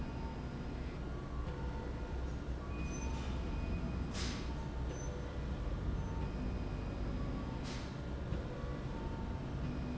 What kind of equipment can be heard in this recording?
slide rail